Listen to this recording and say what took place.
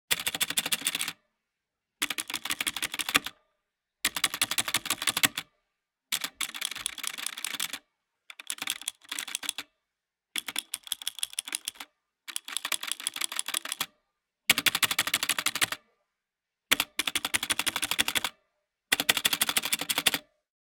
I walked across the office and made my way over to my desk. I sat down, pulled up what I needed, and started typing. The keys clicked steadily as I worked my way through everything.